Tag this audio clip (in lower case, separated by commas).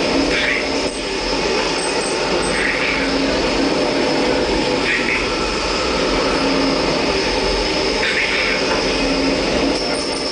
aircraft, speech